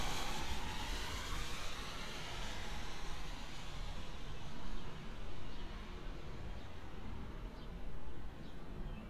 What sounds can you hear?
background noise